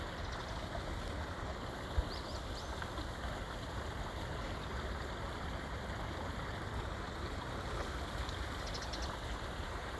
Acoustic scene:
park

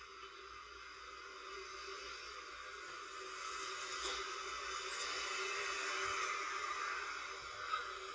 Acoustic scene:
residential area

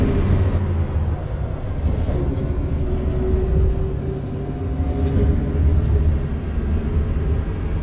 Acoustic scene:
bus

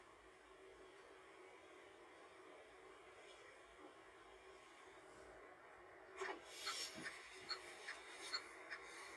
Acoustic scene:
car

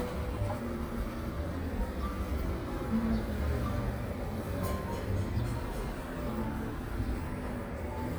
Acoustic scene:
residential area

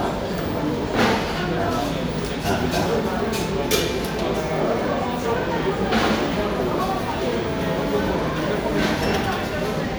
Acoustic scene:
cafe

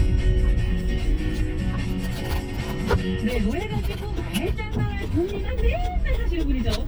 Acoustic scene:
car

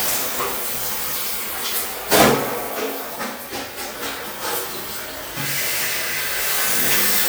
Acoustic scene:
restroom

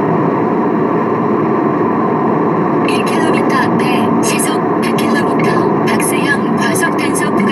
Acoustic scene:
car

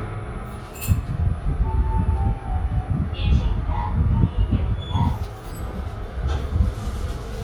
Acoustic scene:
elevator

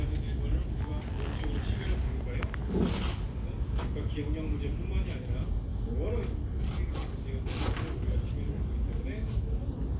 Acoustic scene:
crowded indoor space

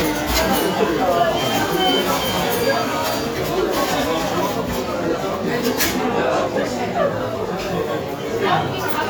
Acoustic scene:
cafe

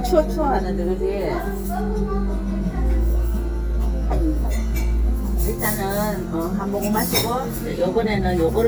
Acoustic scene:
restaurant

